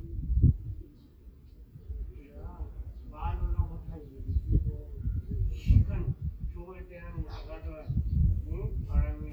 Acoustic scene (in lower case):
park